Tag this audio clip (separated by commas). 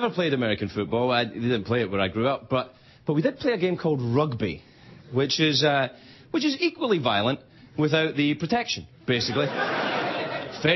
Speech, monologue